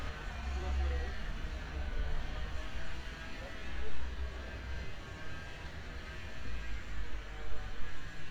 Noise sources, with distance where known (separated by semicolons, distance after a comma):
person or small group talking, near